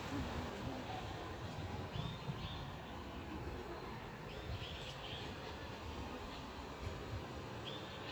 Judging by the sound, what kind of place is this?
park